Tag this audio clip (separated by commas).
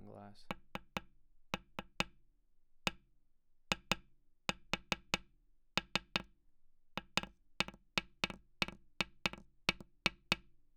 Tap